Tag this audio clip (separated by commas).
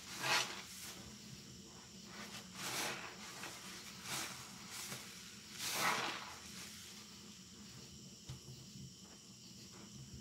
squishing water